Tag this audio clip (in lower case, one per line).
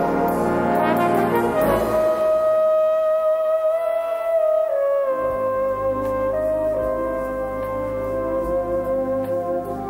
playing trombone